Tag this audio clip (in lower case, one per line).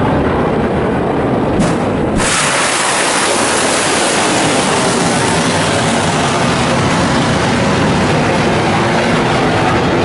missile launch